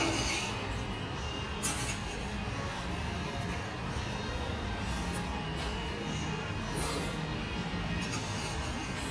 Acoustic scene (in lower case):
restaurant